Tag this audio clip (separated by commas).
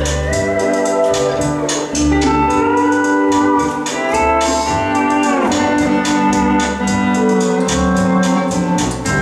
Musical instrument, Steel guitar, Guitar, Music